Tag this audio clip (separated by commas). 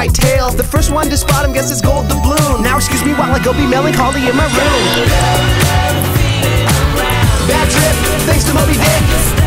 Music